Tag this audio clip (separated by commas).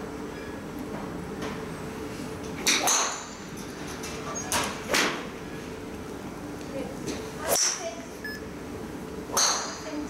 golf driving